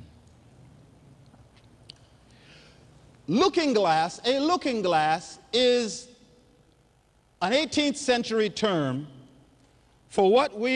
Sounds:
speech

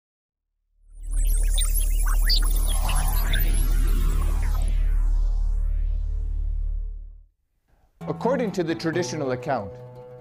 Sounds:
music
outside, rural or natural
speech

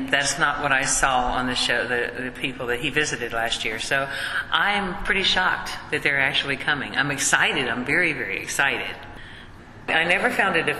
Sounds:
speech

